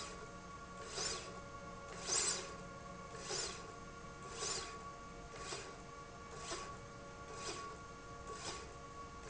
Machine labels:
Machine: slide rail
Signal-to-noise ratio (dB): 6 dB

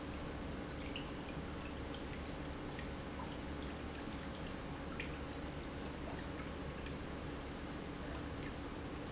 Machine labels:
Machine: pump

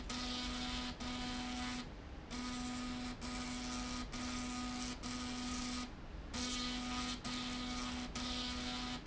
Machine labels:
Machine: slide rail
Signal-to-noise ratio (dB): 6 dB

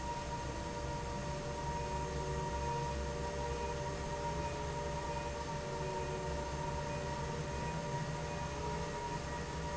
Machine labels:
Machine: fan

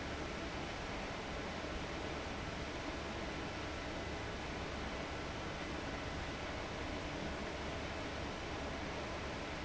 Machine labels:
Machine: fan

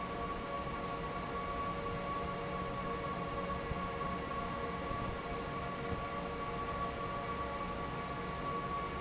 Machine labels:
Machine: fan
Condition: normal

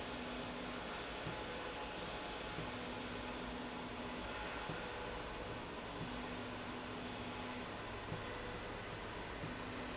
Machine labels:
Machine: slide rail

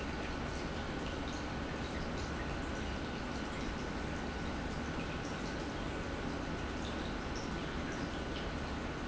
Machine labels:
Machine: pump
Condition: normal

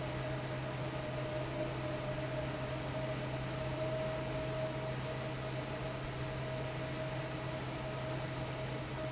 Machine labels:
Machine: fan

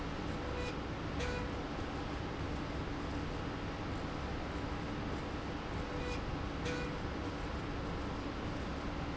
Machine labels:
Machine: slide rail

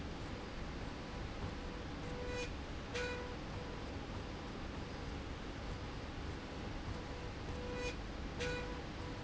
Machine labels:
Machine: slide rail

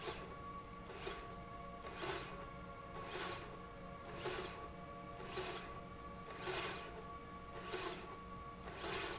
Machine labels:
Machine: slide rail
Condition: normal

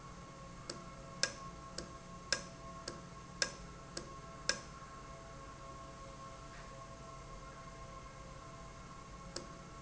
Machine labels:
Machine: valve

